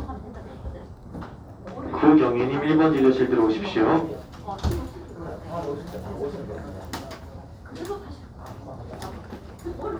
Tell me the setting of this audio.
crowded indoor space